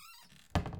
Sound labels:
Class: cupboard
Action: closing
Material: wooden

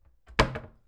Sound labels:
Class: cupboard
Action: closing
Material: wooden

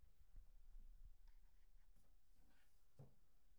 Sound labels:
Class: cupboard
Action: opening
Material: metal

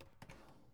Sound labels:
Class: drawer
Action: opening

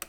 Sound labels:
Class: switch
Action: being turned off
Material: plastic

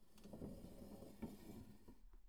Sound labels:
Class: furniture moving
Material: wooden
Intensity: medium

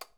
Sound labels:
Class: switch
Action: being turned off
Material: plastic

